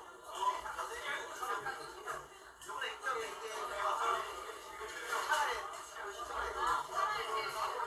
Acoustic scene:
crowded indoor space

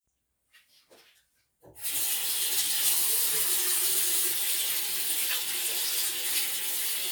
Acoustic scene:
restroom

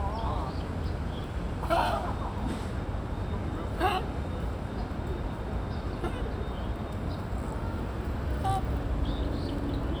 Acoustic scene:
park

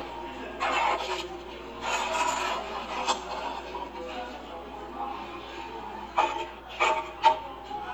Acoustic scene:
cafe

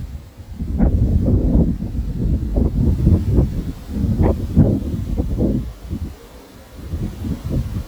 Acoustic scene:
park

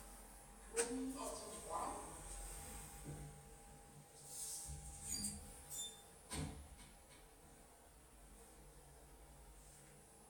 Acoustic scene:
elevator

